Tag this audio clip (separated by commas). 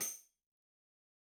Tambourine, Musical instrument, Music, Percussion